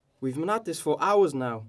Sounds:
Human voice, Speech

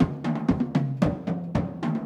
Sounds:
Percussion, Music, Musical instrument, Drum

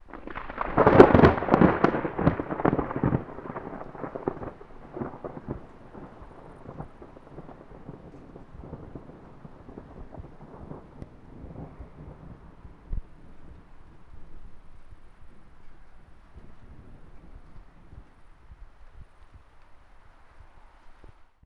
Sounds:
Motor vehicle (road), Thunder, Insect, Vehicle, Rain, Wild animals, Water, Animal, Thunderstorm, roadway noise

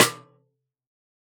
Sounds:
Music, Snare drum, Musical instrument, Percussion, Drum

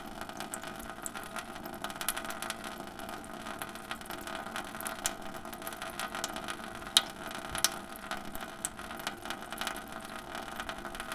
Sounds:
Sink (filling or washing), faucet, home sounds

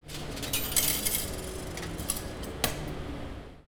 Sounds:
Domestic sounds, Coin (dropping)

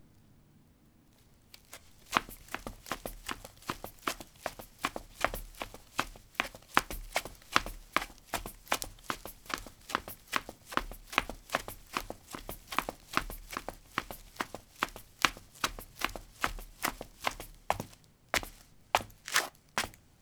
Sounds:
Run

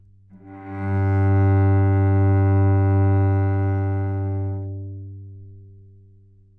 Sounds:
Bowed string instrument, Musical instrument, Music

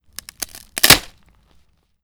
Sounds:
Wood

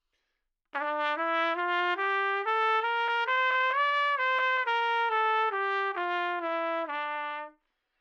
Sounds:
Music, Musical instrument, Trumpet, Brass instrument

